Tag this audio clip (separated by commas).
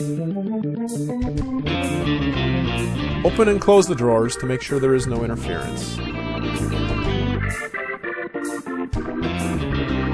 Speech, Music, Electric guitar